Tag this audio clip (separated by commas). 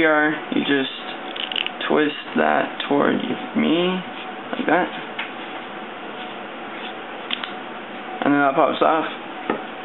inside a small room, Speech